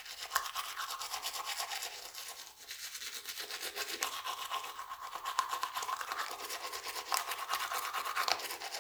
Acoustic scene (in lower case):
restroom